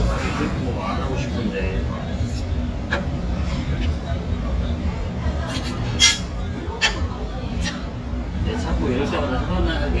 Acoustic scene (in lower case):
restaurant